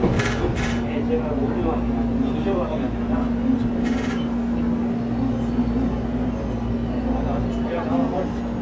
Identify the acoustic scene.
subway train